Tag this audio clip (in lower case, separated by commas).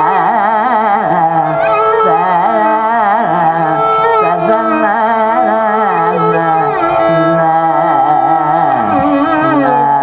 classical music, music, music of asia, carnatic music